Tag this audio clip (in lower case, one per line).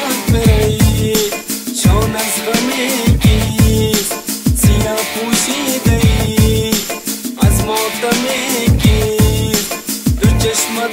soundtrack music
jazz
music